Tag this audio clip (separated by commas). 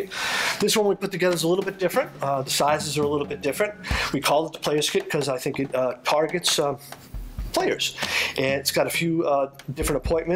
Drum, Speech, Drum kit